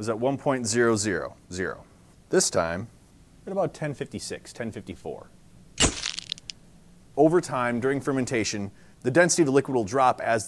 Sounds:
speech

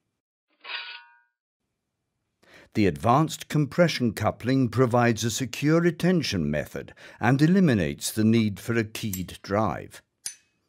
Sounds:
speech

